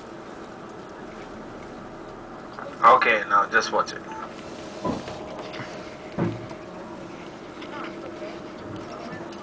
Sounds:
vehicle
bus
speech

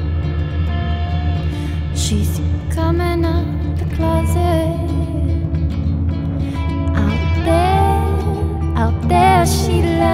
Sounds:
music

